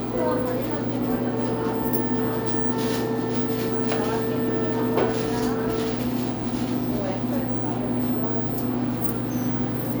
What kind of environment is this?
cafe